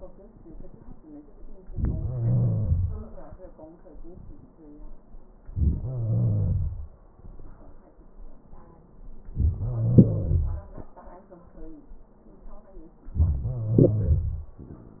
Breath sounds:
2.01-3.00 s: wheeze
5.78-6.91 s: wheeze
9.61-10.74 s: wheeze
13.17-14.52 s: wheeze

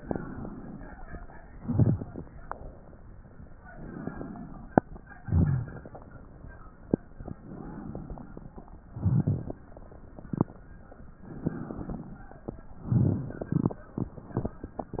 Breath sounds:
0.00-1.16 s: inhalation
1.31-2.39 s: exhalation
1.42-2.32 s: crackles
3.63-4.79 s: inhalation
5.18-6.16 s: exhalation
5.20-6.10 s: crackles
7.26-8.60 s: inhalation
8.64-9.67 s: crackles
8.68-9.65 s: exhalation
11.21-12.55 s: inhalation
12.83-13.80 s: exhalation
12.83-13.80 s: crackles

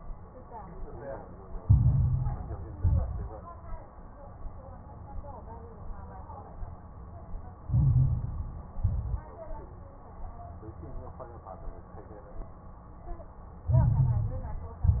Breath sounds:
1.59-2.73 s: inhalation
1.59-2.73 s: crackles
2.77-3.34 s: exhalation
2.77-3.34 s: crackles
7.68-8.72 s: inhalation
7.68-8.72 s: crackles
8.78-9.35 s: exhalation
8.78-9.35 s: crackles
13.68-14.82 s: inhalation
13.68-14.82 s: crackles
14.84-15.00 s: exhalation
14.84-15.00 s: crackles

